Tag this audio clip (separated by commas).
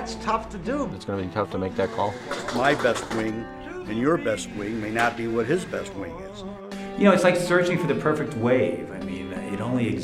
Music, Speech